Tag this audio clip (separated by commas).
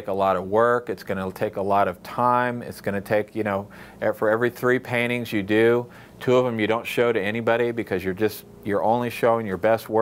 Speech